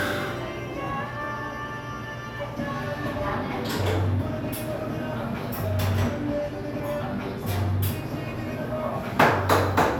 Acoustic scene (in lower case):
cafe